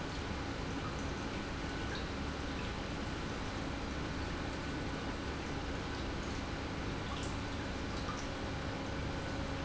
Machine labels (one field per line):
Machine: pump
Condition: normal